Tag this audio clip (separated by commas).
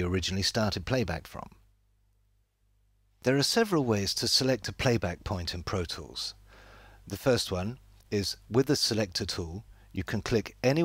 Speech